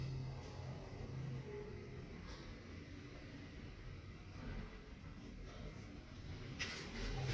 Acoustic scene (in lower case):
elevator